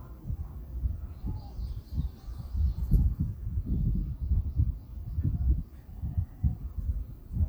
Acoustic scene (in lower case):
residential area